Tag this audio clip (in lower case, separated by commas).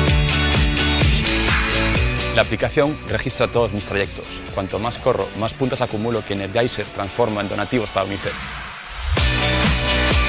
music, speech